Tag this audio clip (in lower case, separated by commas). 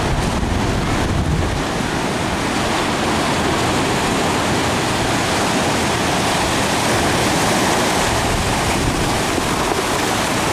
surf, ocean burbling, ocean